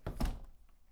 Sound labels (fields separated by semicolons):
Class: window; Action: closing